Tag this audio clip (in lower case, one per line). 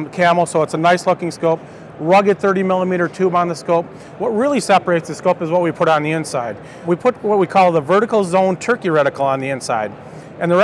speech